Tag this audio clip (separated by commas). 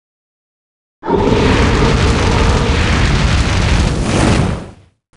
Fire